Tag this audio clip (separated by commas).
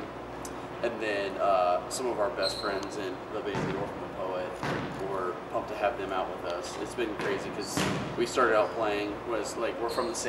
Speech